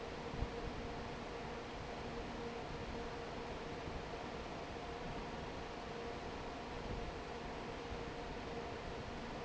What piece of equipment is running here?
fan